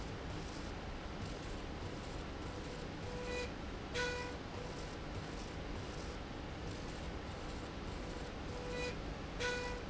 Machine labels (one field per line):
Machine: slide rail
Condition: normal